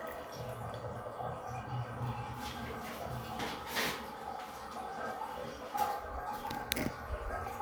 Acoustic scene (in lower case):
restroom